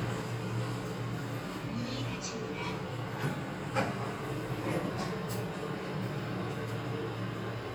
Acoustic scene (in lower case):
elevator